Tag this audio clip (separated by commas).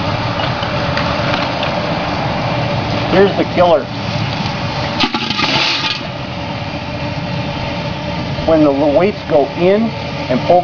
pop, Speech